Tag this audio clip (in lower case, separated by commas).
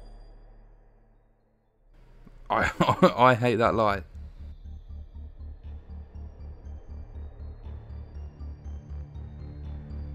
music, speech